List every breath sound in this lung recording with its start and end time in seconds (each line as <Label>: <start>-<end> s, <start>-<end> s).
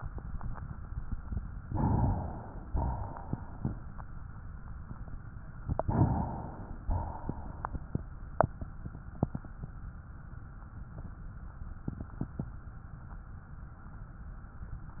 Inhalation: 1.55-2.62 s, 5.60-6.83 s
Exhalation: 2.66-4.00 s, 6.84-8.32 s